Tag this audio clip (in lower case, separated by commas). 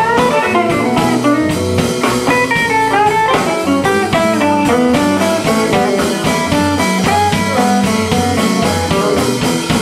blues, music